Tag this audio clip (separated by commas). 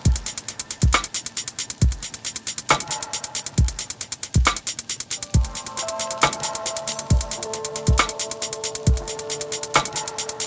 Music